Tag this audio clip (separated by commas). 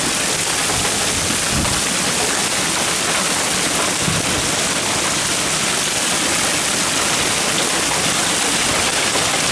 hail